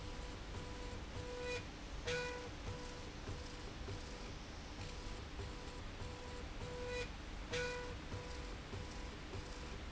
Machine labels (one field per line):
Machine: slide rail